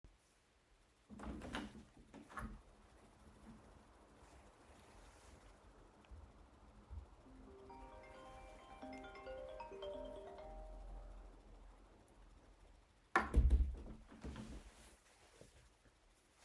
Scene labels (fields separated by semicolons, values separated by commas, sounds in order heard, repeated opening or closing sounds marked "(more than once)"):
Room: bedroom; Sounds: window (more than once), phone ringing